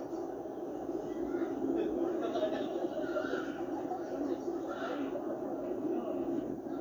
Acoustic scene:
park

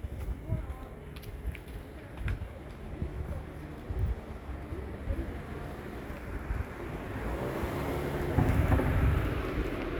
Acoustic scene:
residential area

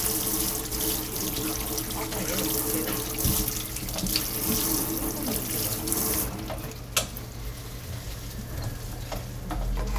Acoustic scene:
kitchen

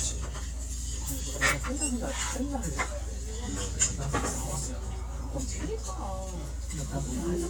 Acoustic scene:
restaurant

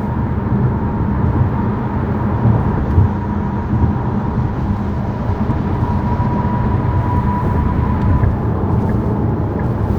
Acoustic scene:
car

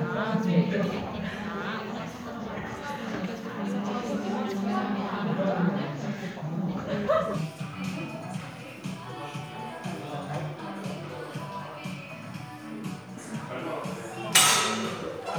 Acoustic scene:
crowded indoor space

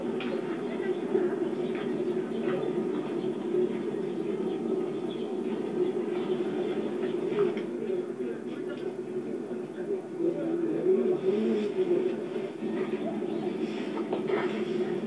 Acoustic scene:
park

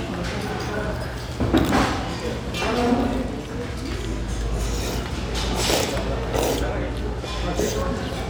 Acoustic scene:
restaurant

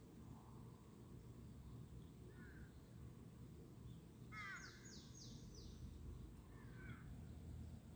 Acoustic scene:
park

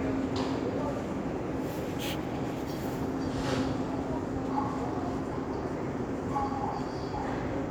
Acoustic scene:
subway station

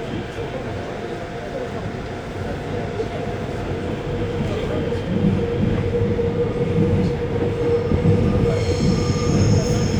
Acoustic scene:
subway train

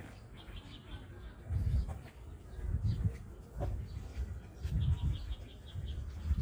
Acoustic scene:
park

